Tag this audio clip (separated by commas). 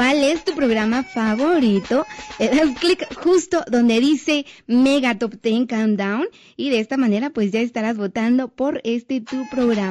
Speech, Music